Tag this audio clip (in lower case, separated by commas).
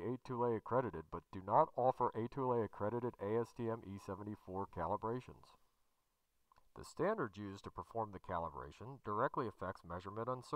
monologue, speech